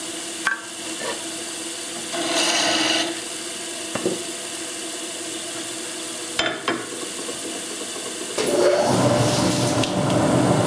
A tool motor is running and clattering is present